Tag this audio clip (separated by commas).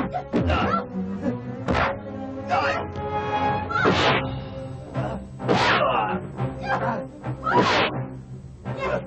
Music